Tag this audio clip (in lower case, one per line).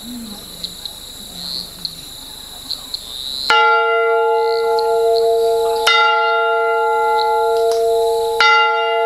outside, rural or natural